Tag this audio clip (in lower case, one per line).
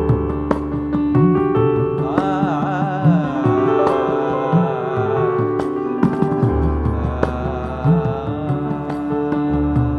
carnatic music
musical instrument
classical music
music
percussion